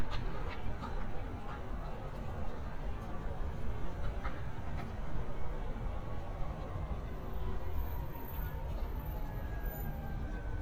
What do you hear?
siren